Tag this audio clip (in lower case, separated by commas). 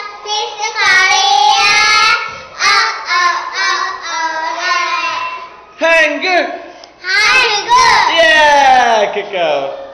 speech, mantra